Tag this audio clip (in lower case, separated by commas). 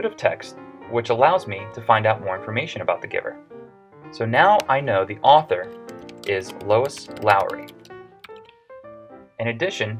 music, speech